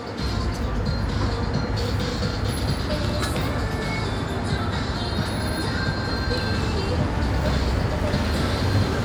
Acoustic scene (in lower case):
street